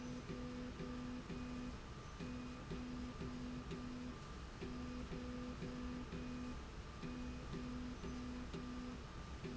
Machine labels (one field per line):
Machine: slide rail